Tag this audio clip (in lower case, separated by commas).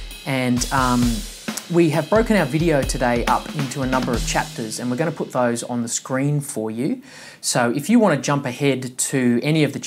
drum, drum kit, pop music, music, musical instrument, speech